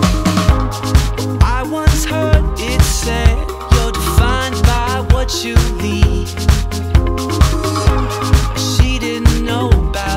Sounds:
Music

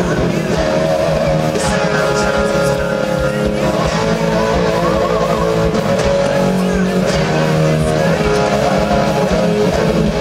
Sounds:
Music, Electric guitar, Plucked string instrument, Musical instrument, Guitar, Strum

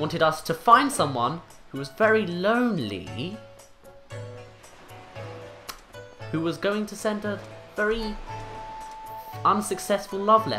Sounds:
Speech, Music

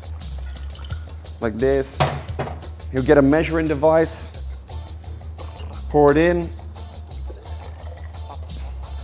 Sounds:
Music, Speech

